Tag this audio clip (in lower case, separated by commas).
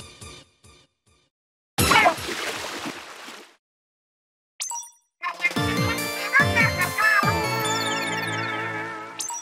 speech, silence, music